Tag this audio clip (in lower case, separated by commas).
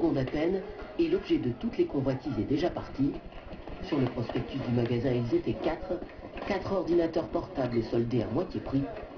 speech